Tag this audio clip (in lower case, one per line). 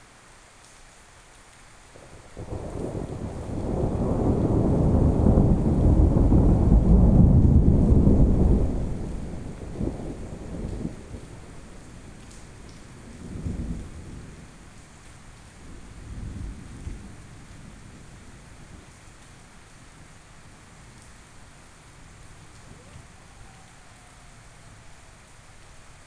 thunder
water
thunderstorm
rain